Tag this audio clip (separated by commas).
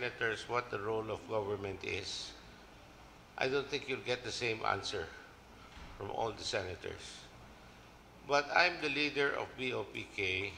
Male speech, Speech, monologue